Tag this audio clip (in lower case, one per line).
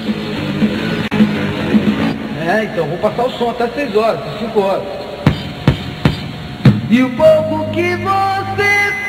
music
speech